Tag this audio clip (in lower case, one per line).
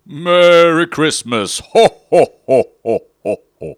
human voice